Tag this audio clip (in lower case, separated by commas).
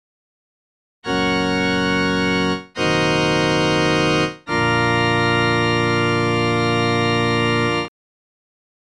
keyboard (musical), musical instrument, organ, music